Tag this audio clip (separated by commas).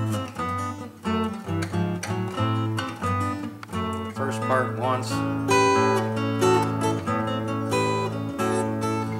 Blues, Strum, Music, Musical instrument, Guitar, Plucked string instrument, Speech, Acoustic guitar